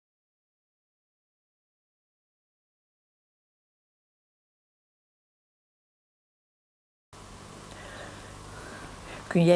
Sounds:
speech

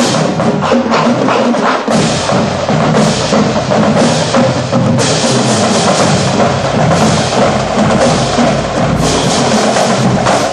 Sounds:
music, percussion

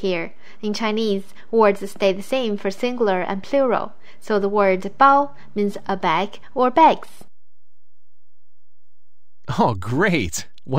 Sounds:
speech

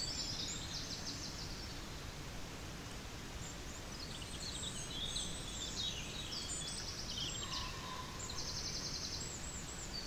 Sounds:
bird, bird song, chirp

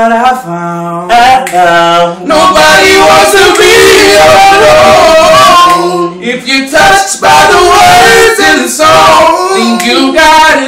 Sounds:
choir, male singing, middle eastern music

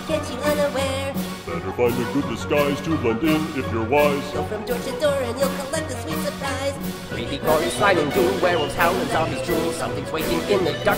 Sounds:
music, choir

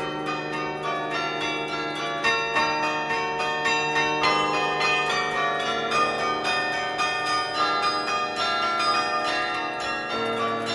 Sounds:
wind chime

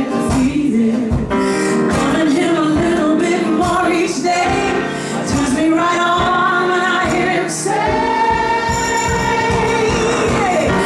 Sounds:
music, singing

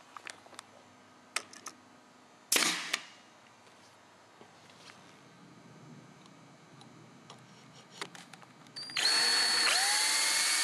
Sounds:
power tool, tools, drill

